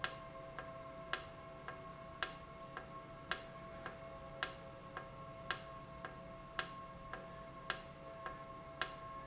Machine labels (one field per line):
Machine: valve